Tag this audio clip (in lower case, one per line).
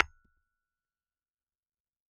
tools
hammer
tap